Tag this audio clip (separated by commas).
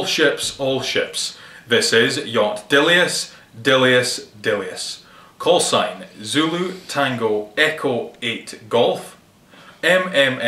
Speech